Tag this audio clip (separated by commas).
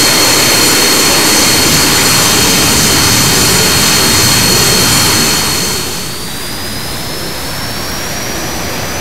airplane, airscrew, Aircraft, Jet engine